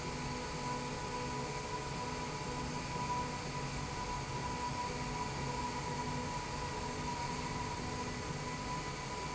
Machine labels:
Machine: slide rail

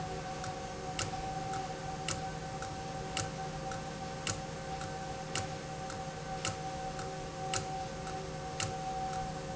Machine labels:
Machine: valve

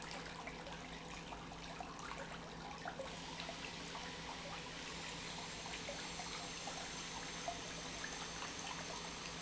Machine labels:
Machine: pump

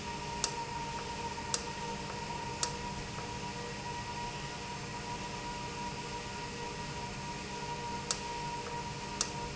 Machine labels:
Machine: valve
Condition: normal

